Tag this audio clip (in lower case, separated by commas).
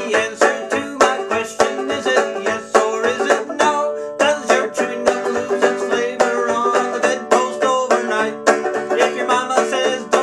music